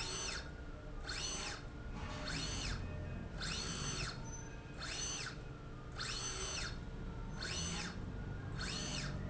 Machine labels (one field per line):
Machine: slide rail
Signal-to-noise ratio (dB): 0 dB